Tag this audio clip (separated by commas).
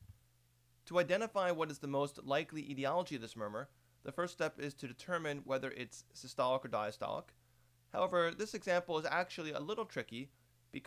Speech